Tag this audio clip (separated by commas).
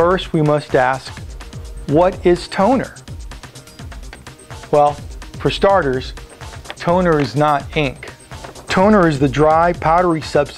Speech, Music